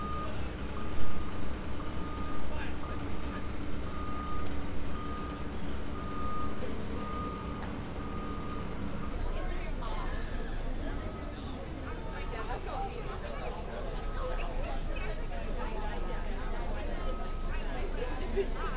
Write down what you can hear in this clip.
reverse beeper, person or small group talking